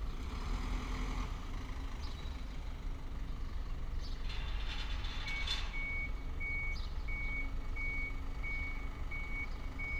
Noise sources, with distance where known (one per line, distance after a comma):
large-sounding engine, near
reverse beeper, near